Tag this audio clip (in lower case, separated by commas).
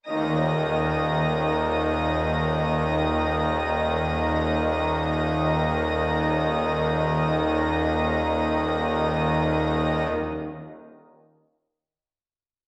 keyboard (musical), music, musical instrument, organ